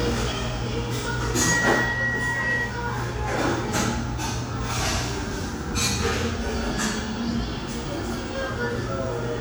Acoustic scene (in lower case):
cafe